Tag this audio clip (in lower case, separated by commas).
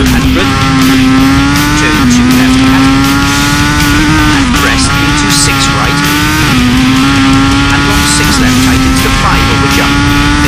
music, speech